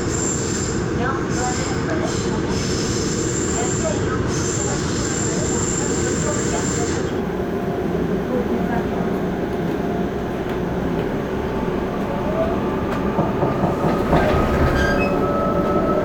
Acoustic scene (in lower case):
subway train